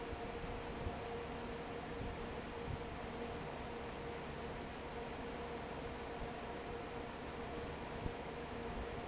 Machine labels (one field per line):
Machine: fan